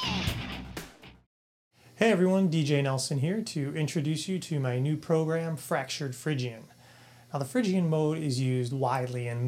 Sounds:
musical instrument
electric guitar
guitar
speech
plucked string instrument
music

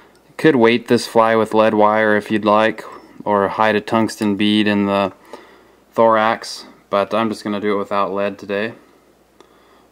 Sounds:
speech

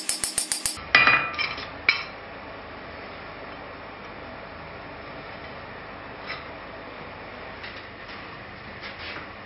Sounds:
forging swords

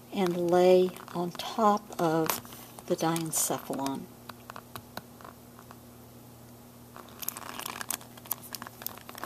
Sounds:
crumpling
speech
inside a small room

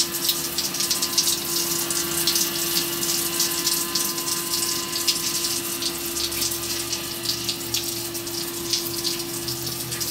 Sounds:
pump (liquid)

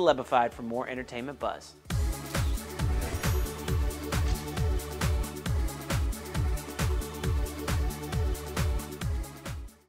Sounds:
speech
music

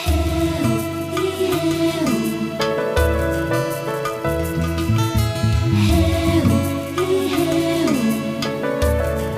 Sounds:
music

